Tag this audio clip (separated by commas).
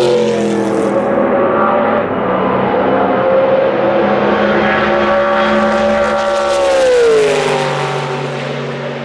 Race car